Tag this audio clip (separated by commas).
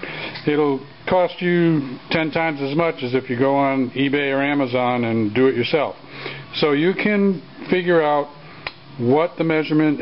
Speech